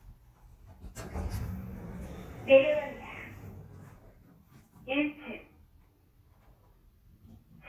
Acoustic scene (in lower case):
elevator